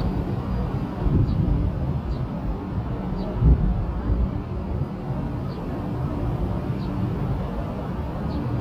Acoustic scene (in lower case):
park